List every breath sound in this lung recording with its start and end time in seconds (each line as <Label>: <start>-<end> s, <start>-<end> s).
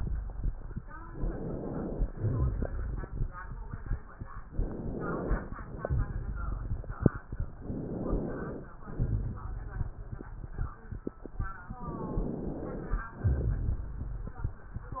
Inhalation: 1.07-2.12 s, 4.43-5.64 s, 7.59-8.68 s, 11.82-13.03 s
Exhalation: 2.14-3.35 s, 5.64-6.97 s, 8.80-9.89 s, 13.19-14.58 s
Crackles: 2.14-3.35 s, 5.64-6.97 s, 8.80-9.89 s, 13.19-14.58 s